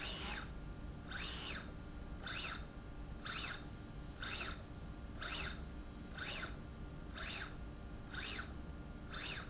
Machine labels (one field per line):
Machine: slide rail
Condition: normal